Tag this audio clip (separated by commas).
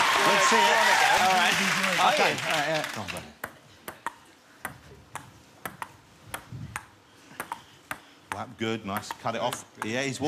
playing table tennis